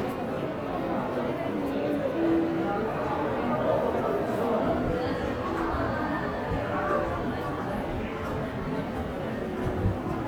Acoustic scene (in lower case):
crowded indoor space